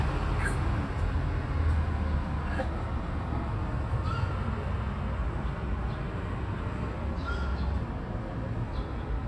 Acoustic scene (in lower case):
residential area